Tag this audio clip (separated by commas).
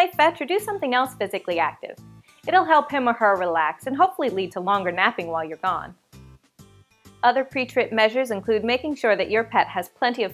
Music, Speech